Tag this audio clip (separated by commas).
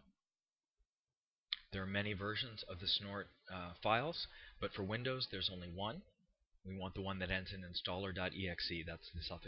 Speech